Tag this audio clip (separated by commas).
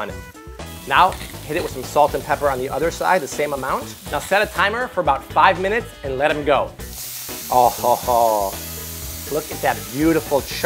Sizzle